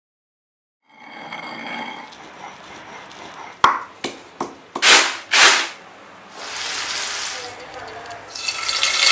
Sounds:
inside a small room

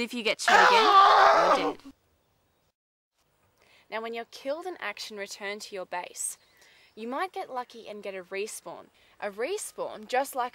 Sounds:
Speech

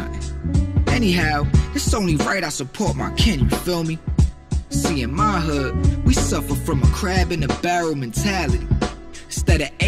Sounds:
Music, Speech

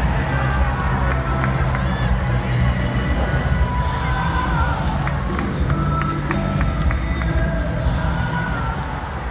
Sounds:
Music, Speech

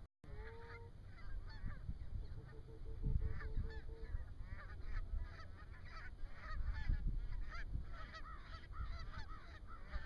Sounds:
Fowl, Goose, Honk

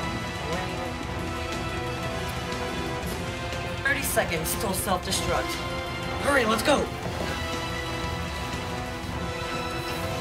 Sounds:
Music, Speech

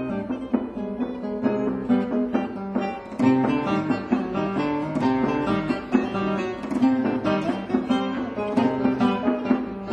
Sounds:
Plucked string instrument, Musical instrument, Music, Guitar

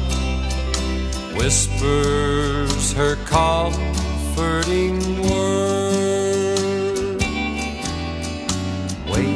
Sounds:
Music

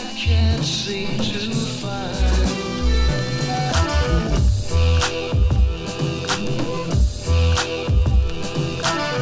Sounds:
Music, Psychedelic rock

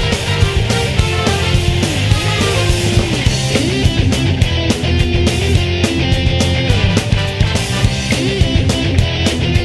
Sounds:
Music

